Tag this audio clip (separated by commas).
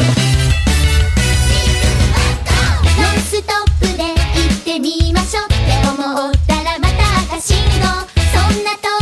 Music for children